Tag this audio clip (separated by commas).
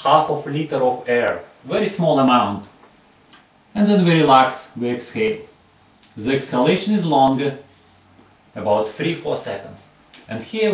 Speech